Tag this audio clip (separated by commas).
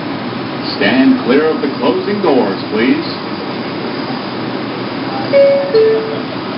Subway, Rail transport, Vehicle